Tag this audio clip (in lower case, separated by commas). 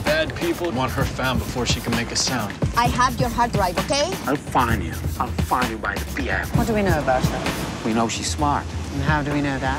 music, speech